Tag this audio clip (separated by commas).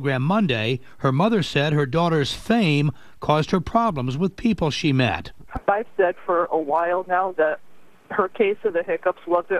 Speech